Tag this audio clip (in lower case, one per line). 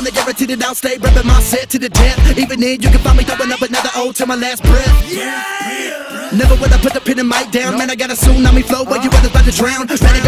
dance music
music